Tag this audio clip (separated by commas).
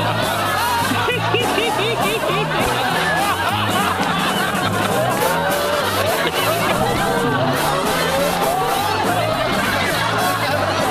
Music, Snicker